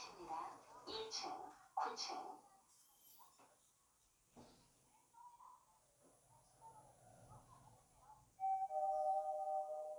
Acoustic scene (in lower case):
elevator